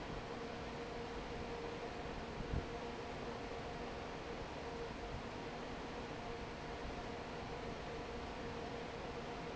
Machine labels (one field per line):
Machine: fan